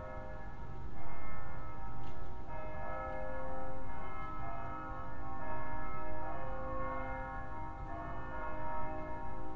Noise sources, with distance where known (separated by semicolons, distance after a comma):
music from an unclear source, far